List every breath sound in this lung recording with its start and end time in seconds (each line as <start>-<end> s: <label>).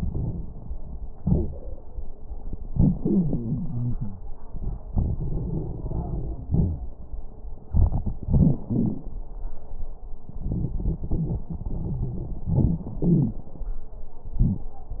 0.00-0.48 s: inhalation
0.00-0.48 s: crackles
1.20-1.64 s: exhalation
1.20-1.64 s: wheeze
2.67-4.18 s: inhalation
3.00-4.18 s: wheeze
4.91-6.90 s: exhalation
4.95-6.45 s: crackles
6.47-6.87 s: wheeze
7.67-8.62 s: crackles
8.67-9.07 s: wheeze
10.46-11.47 s: inhalation
10.46-11.47 s: crackles
11.49-12.47 s: crackles
11.50-12.51 s: exhalation
12.50-12.94 s: crackles
12.99-13.45 s: crackles
14.31-14.74 s: crackles